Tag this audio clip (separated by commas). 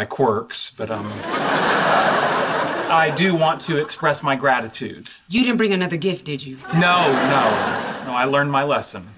Speech